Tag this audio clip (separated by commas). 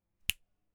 Finger snapping, Hands